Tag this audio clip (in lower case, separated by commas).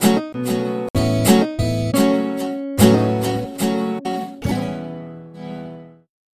plucked string instrument, musical instrument, music, guitar